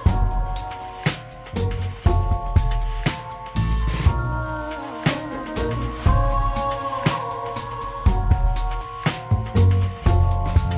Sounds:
music

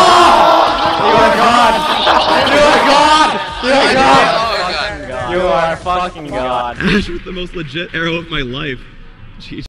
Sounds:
speech

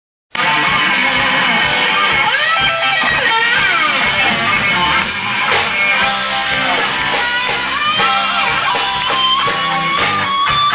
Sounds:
electric guitar, playing electric guitar, guitar, musical instrument, rock music, plucked string instrument, bowed string instrument, music

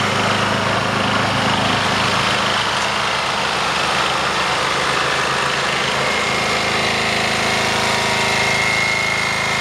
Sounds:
idling, outside, urban or man-made, vehicle

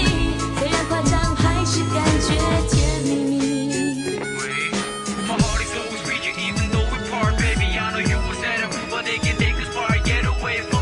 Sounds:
pop music, music, exciting music

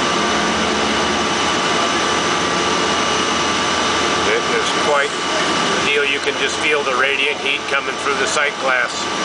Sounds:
speech

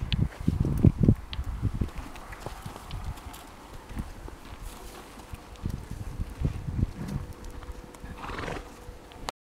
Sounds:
horse, horse clip-clop, clip-clop, animal

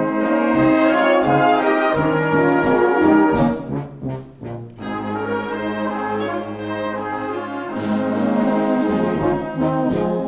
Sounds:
trombone, brass instrument, trumpet, orchestra

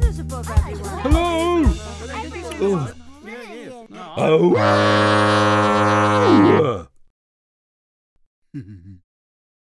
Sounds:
music, burst, speech

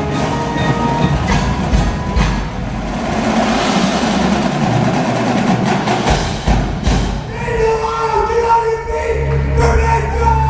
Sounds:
speech, wood block, music

